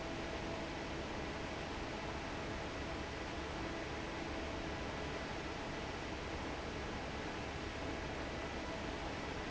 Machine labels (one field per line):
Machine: fan